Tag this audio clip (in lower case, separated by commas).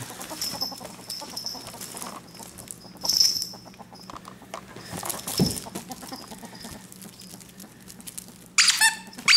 ferret dooking